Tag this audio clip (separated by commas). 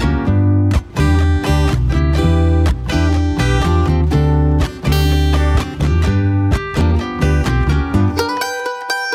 Music